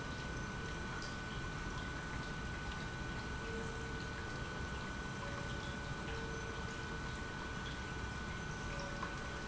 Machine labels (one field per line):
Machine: pump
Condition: normal